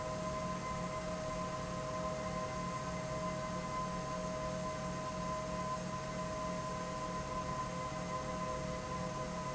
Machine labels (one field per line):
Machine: fan